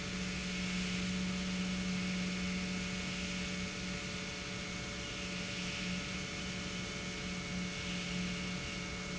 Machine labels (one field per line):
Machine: pump